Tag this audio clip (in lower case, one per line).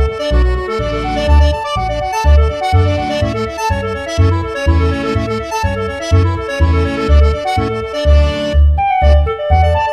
music